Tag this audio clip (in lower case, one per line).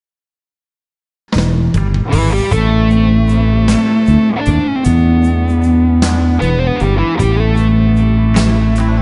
music
plucked string instrument
guitar
inside a small room
musical instrument